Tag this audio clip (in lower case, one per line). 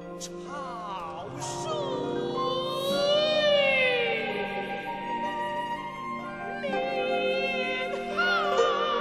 music